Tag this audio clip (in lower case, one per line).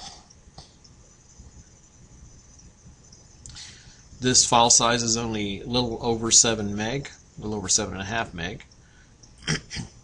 speech
inside a small room